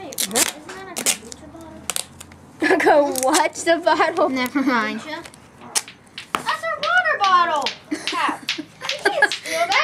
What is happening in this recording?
Something rips as children talk and laugh and finally yell